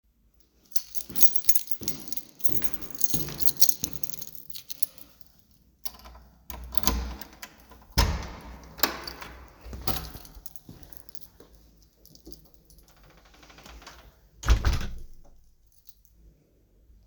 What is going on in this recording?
I walked from the elevator to my appartement door unlocked it and closed it behind me.